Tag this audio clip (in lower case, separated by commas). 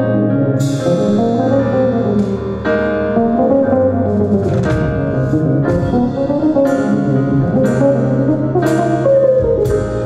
musical instrument, inside a large room or hall, music, guitar, plucked string instrument